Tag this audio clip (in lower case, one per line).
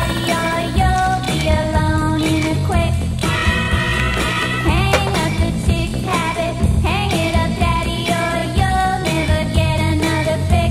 music
soundtrack music